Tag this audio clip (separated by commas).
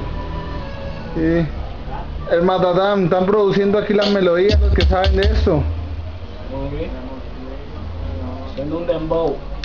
Speech, Music